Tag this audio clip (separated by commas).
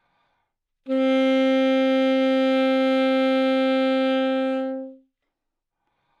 woodwind instrument, Musical instrument, Music